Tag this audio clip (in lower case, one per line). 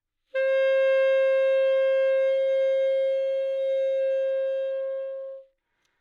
music
wind instrument
musical instrument